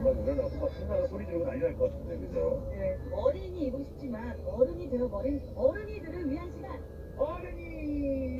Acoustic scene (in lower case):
car